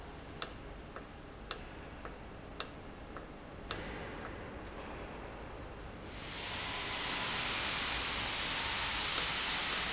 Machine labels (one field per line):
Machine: valve